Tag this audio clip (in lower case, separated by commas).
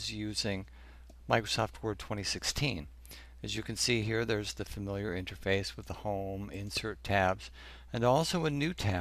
speech, male speech